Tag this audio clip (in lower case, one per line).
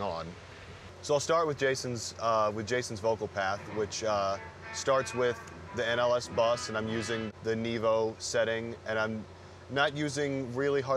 music
speech